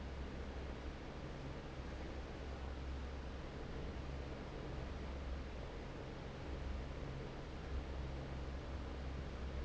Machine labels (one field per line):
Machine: fan